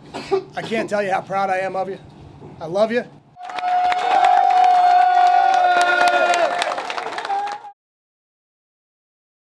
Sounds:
speech, narration, man speaking

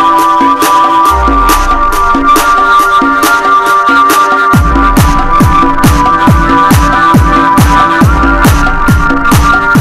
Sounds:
electronic music, music

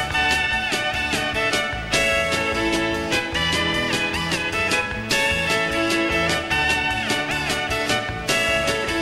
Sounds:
music, violin, musical instrument

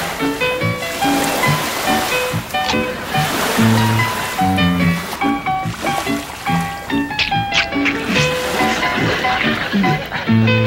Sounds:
boat, music

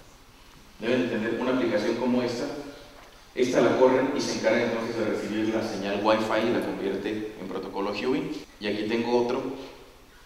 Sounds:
speech

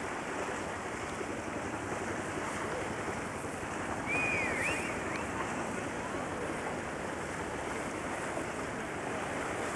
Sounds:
speech, water vehicle, vehicle

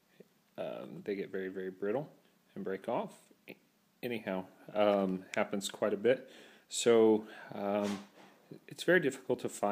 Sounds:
speech

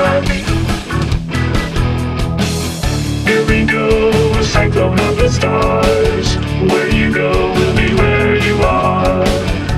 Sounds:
music

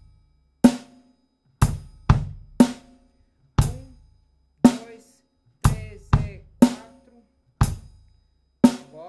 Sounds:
bass drum, drum kit, speech, drum, musical instrument, music, snare drum

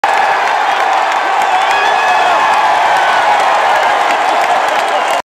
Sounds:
speech

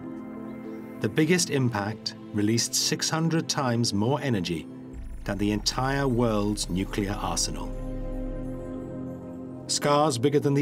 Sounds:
music, speech

